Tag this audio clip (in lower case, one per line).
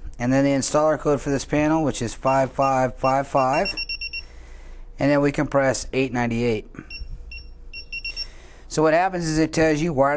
speech